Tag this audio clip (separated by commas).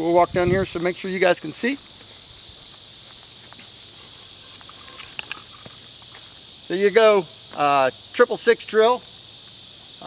outside, rural or natural, Speech